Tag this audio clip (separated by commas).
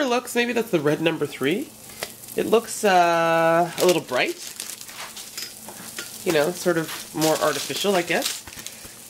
Speech, inside a small room